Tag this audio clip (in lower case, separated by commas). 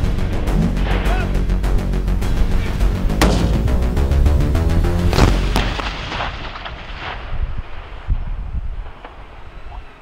firing cannon